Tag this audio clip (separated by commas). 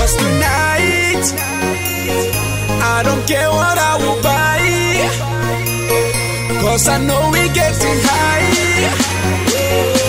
Music